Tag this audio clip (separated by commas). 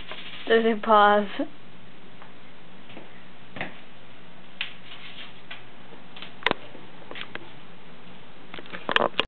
Speech